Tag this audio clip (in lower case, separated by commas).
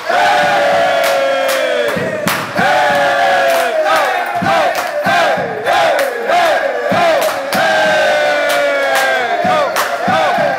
inside a large room or hall